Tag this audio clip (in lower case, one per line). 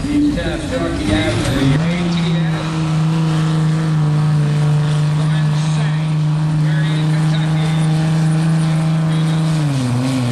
speech
truck
vehicle